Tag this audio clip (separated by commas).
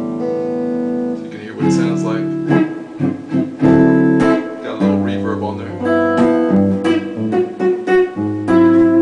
Speech, Music, Plucked string instrument, Effects unit, Guitar, Musical instrument